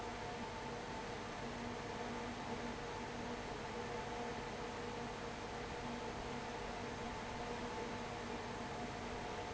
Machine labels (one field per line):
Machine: fan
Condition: abnormal